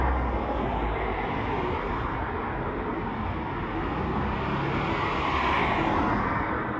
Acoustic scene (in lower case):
street